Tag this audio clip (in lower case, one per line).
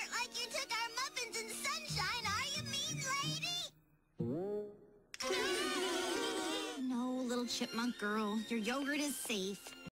speech
music